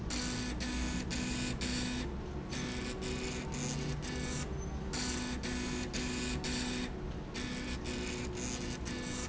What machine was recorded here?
slide rail